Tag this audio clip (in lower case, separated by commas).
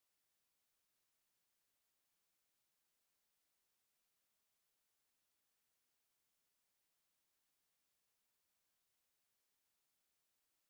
firing cannon